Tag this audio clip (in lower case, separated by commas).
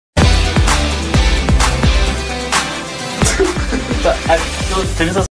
music, speech